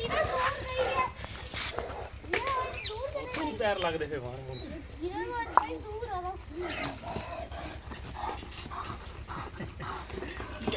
People speak and a dog pants